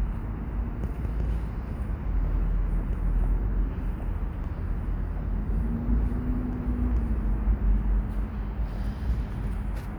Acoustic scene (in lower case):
residential area